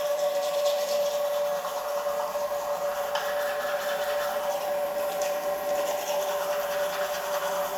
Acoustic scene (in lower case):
restroom